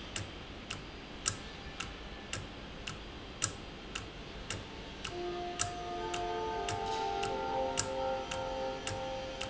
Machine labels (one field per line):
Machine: valve